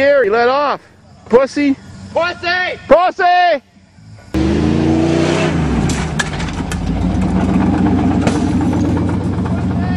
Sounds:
Truck, Vehicle, Speech

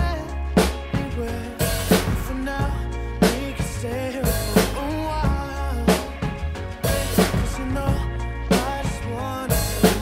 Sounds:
playing snare drum

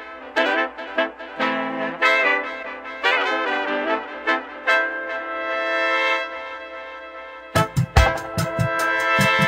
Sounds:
Reggae

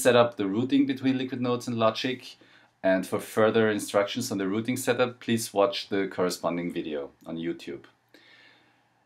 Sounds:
Speech

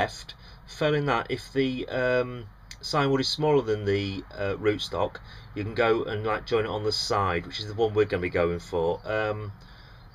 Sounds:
Speech

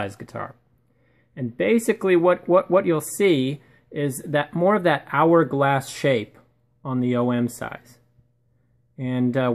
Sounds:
Speech

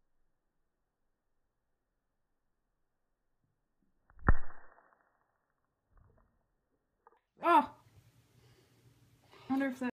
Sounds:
Speech

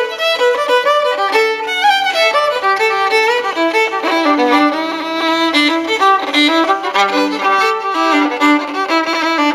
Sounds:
Musical instrument, fiddle, Music

